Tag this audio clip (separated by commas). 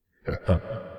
Laughter, Human voice